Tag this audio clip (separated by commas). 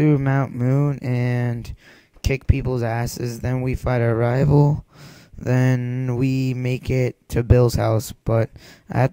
Speech